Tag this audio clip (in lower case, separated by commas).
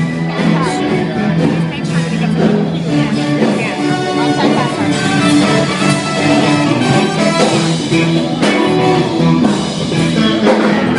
music, speech, rock and roll